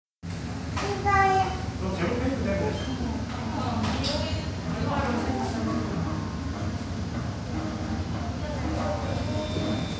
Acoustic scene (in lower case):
cafe